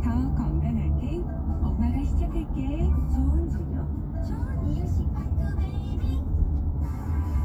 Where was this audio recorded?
in a car